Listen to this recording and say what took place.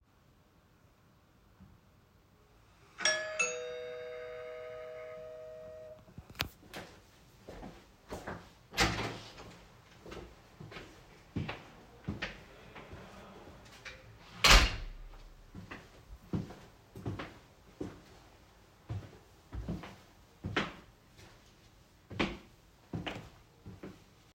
After hearing the doorbell I opened the door, let person in and while he was walking around I closed the door.